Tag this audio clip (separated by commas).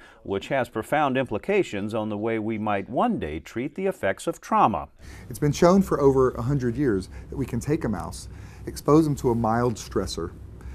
Speech